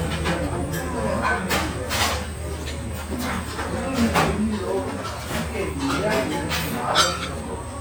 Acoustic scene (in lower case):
restaurant